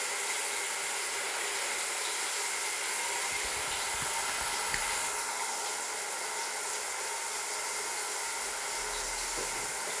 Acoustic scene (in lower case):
restroom